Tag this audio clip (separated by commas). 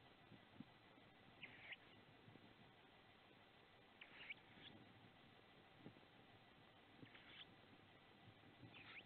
Owl